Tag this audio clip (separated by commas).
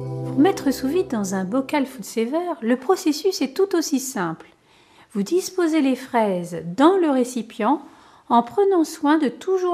Speech, Music